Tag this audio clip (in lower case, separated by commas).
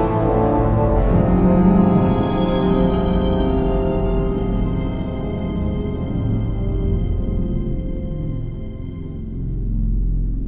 scary music, music